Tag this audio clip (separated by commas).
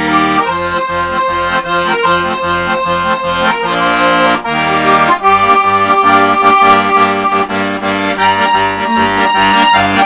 Music, Accordion